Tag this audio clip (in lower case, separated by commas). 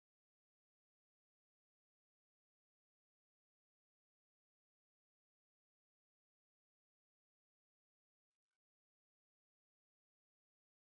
singing, music